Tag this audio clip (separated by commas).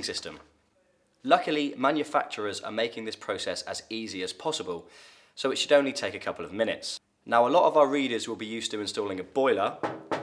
Speech